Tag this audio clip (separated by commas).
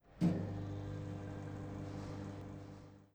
Microwave oven, home sounds